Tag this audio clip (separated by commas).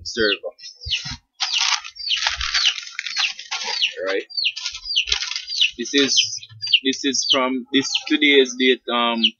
Speech